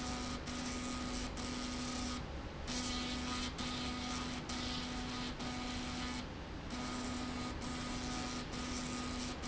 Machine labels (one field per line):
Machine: slide rail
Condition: abnormal